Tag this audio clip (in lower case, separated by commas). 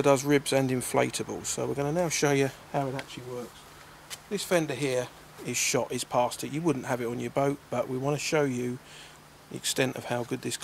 speech